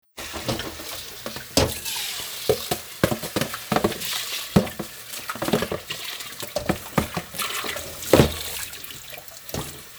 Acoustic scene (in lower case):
kitchen